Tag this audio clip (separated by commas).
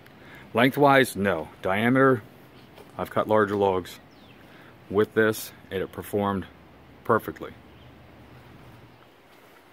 Speech